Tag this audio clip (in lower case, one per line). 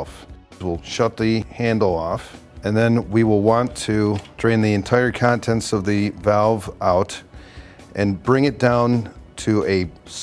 speech